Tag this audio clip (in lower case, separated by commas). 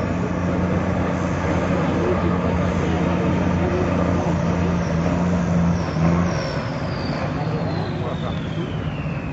speech, vehicle, truck